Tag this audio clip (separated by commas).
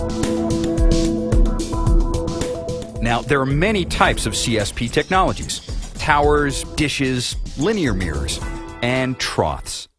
Music, Speech